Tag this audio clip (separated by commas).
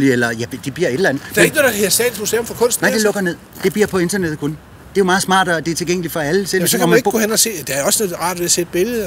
Speech